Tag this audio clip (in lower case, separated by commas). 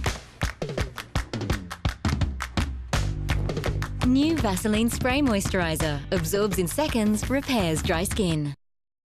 music, speech